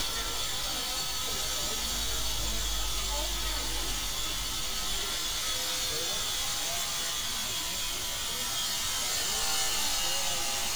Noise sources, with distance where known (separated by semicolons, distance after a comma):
small or medium rotating saw; person or small group talking